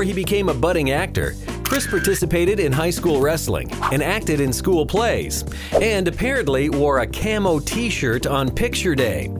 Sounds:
Music, Speech

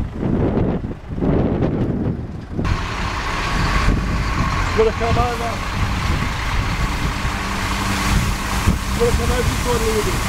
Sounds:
Vehicle, Speech, Truck

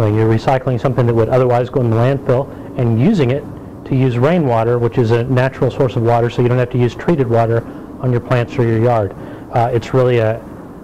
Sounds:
Speech

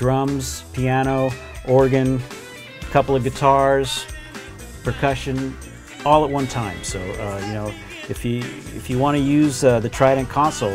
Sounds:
Music, Speech

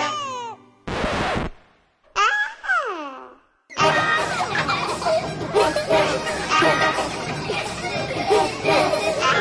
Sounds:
Music, Baby cry

